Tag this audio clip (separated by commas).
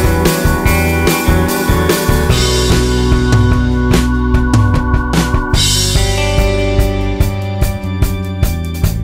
opening or closing drawers